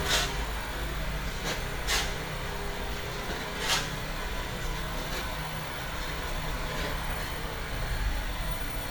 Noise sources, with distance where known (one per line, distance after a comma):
engine of unclear size